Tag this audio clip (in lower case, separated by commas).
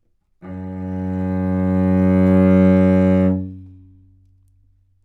music, musical instrument, bowed string instrument